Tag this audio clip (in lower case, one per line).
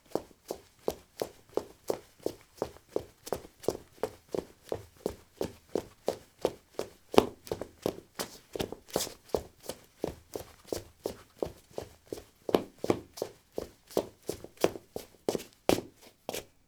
run